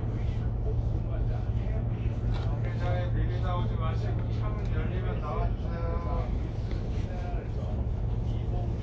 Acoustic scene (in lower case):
bus